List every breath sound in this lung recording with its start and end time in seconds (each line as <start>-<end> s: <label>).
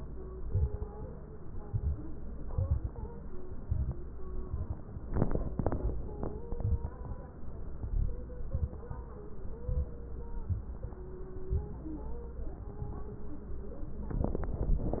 0.45-0.84 s: inhalation
0.45-0.84 s: crackles
1.61-2.00 s: inhalation
1.61-2.00 s: crackles
2.49-3.05 s: inhalation
2.49-3.05 s: crackles
3.60-4.03 s: inhalation
3.60-4.03 s: crackles
4.42-4.84 s: inhalation
6.48-6.91 s: inhalation
6.48-6.91 s: crackles
7.79-8.22 s: inhalation
7.79-8.22 s: crackles
9.66-9.92 s: inhalation
9.66-9.92 s: crackles